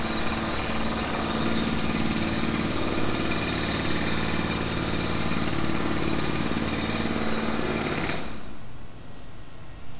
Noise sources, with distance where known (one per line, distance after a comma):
jackhammer, near